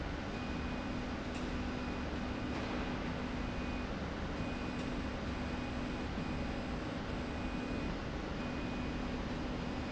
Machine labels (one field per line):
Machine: slide rail